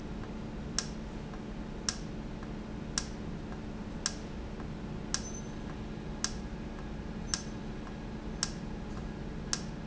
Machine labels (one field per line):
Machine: valve